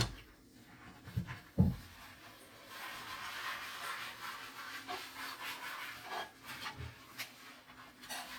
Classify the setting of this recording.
kitchen